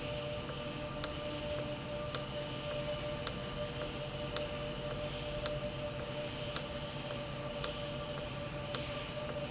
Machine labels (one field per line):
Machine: valve